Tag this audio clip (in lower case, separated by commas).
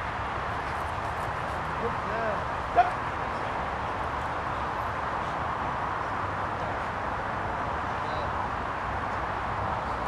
speech, pets, dog, animal